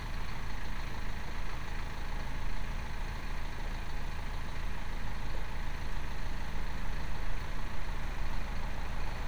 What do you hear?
engine of unclear size